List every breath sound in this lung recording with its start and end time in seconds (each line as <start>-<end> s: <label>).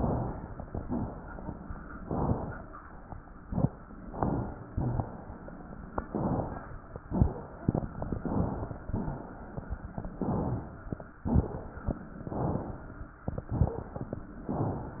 1.96-2.70 s: exhalation
4.10-4.66 s: inhalation
4.72-5.29 s: exhalation
6.09-6.65 s: inhalation
7.06-7.62 s: exhalation
7.06-7.62 s: crackles
7.68-8.24 s: inhalation
8.29-8.85 s: exhalation
8.29-8.85 s: crackles
10.21-10.95 s: inhalation
11.27-12.01 s: exhalation
12.22-12.96 s: inhalation
13.45-14.19 s: exhalation
13.57-14.07 s: wheeze
14.50-15.00 s: inhalation